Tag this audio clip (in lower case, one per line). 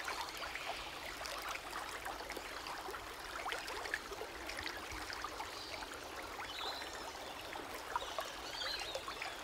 water